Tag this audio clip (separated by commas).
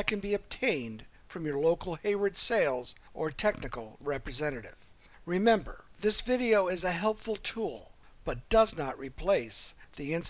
Speech